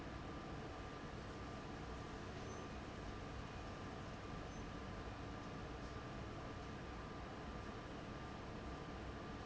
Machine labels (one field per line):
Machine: fan